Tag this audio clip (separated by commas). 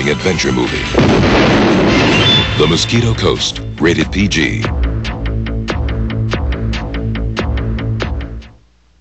Speech, Music